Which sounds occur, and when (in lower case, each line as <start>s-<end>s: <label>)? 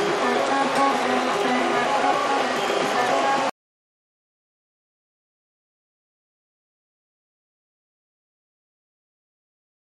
0.0s-3.5s: printer
0.0s-3.5s: music
0.7s-0.8s: tick